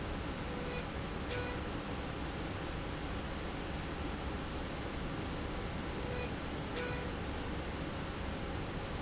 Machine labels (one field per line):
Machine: slide rail